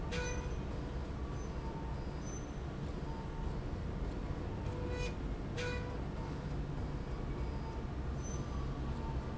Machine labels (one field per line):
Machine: slide rail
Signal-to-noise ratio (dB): -6 dB